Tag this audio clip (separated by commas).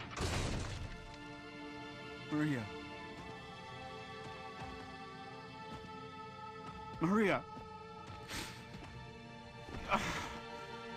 Speech, Music